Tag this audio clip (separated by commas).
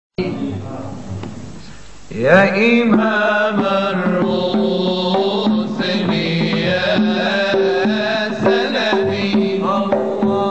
Music, Carnatic music